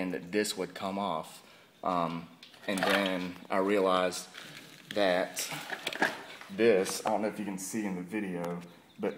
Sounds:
speech

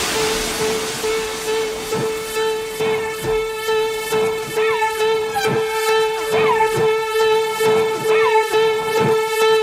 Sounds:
white noise, music

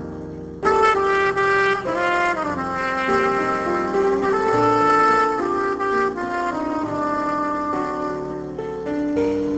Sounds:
music, jazz

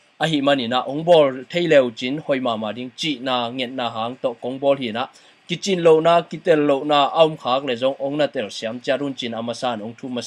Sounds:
speech

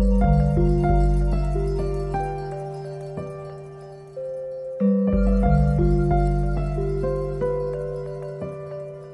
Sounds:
pizzicato

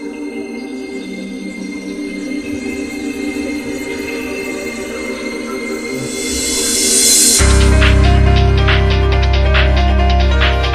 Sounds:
music

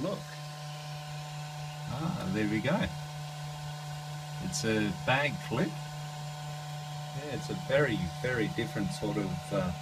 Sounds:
printer, speech

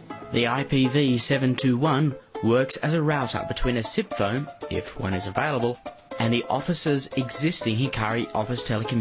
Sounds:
music, speech

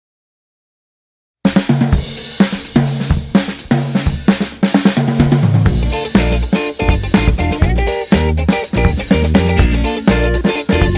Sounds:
drum kit, music, drum roll, hi-hat, drum

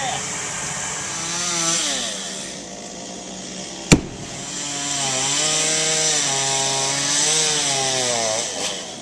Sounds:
chainsaw

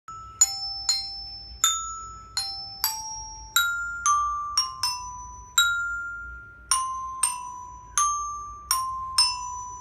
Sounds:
xylophone, music

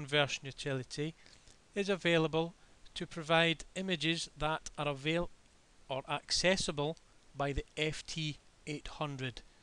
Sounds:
speech

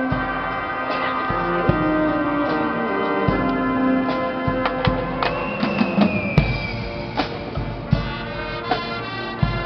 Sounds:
music

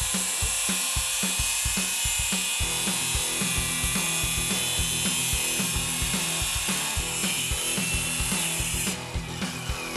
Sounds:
music, tools, power tool

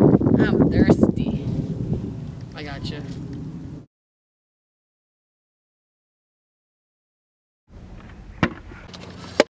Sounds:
speech

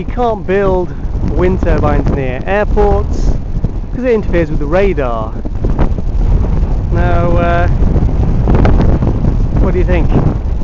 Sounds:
wind noise (microphone), speech

